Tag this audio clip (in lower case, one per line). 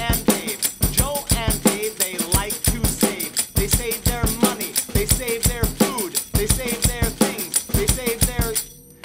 drum
music